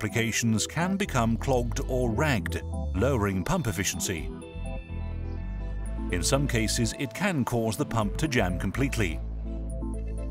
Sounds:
speech, music

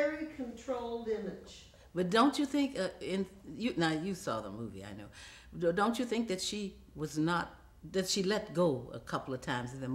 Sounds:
conversation, speech

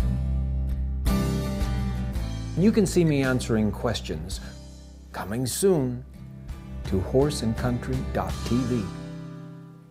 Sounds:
music, speech

